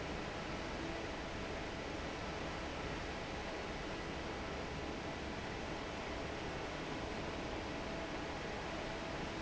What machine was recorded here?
fan